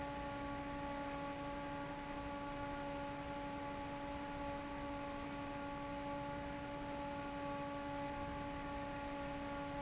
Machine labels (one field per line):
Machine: fan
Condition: normal